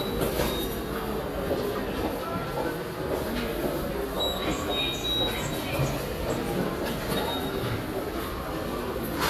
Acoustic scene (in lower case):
subway station